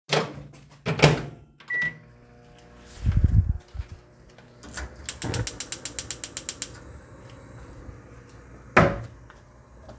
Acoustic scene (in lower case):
kitchen